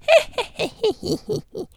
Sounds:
Human voice, Laughter

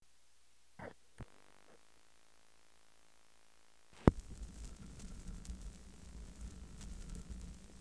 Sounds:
Crackle

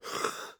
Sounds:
Respiratory sounds, Cough

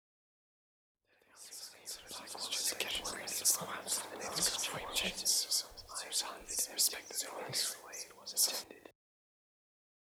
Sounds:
Human voice, Whispering

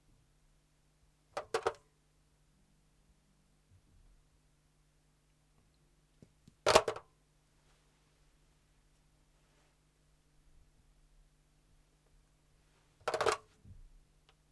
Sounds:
Telephone, Alarm

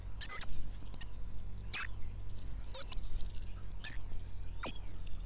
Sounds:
Bird, Wild animals, Animal

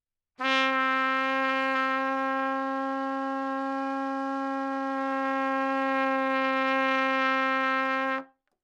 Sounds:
Musical instrument, Brass instrument, Music, Trumpet

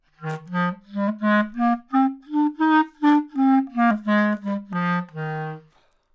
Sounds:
Music, Musical instrument, Wind instrument

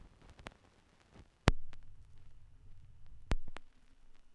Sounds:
Crackle

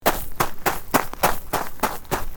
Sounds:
Run

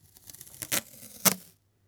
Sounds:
Packing tape, Domestic sounds

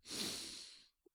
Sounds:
Respiratory sounds

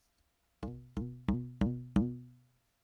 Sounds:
Music, Musical instrument

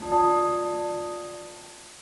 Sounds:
Bell

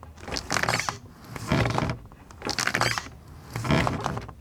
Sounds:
Door, home sounds

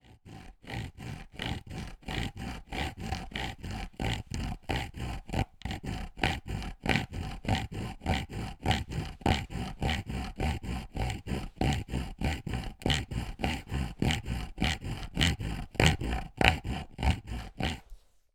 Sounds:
Sawing, Tools

